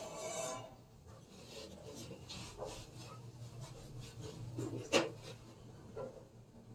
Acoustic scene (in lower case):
elevator